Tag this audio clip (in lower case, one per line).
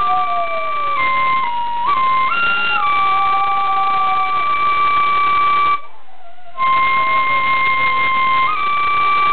pets
dog
music
inside a small room
animal